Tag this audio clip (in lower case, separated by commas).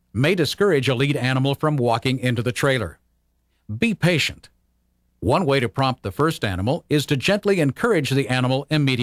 speech